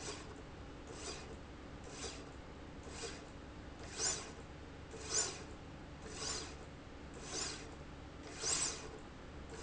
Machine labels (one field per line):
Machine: slide rail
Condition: normal